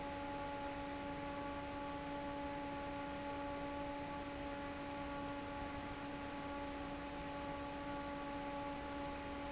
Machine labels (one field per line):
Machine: fan